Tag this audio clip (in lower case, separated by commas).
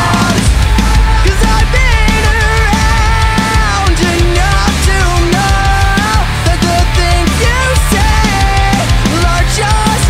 music, exciting music